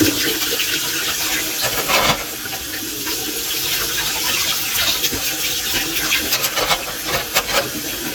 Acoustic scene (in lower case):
kitchen